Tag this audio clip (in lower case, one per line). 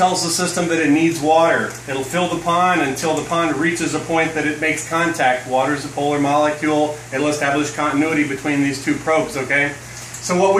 speech